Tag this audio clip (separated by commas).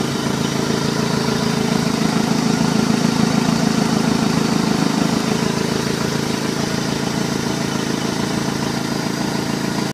Engine, Idling, Heavy engine (low frequency)